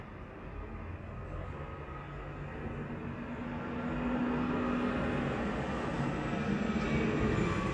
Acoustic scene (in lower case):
residential area